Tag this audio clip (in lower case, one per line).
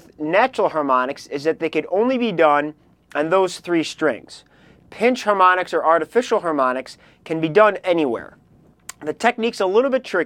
speech